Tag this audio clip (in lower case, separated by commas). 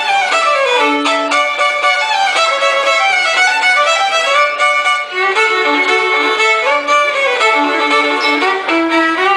music, musical instrument, violin